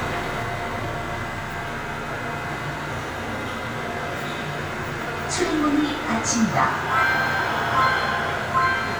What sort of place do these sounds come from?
subway train